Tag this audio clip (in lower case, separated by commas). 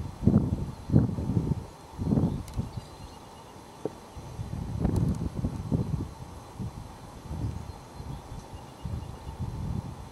animal, outside, rural or natural